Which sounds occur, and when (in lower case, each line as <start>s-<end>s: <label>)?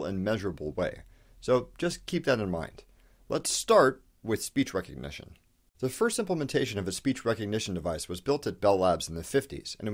0.0s-1.1s: male speech
0.0s-5.7s: background noise
1.1s-1.4s: breathing
1.4s-1.7s: male speech
1.8s-2.8s: male speech
2.9s-3.2s: breathing
3.3s-3.9s: male speech
4.2s-5.4s: male speech
5.8s-9.9s: male speech
5.8s-9.9s: background noise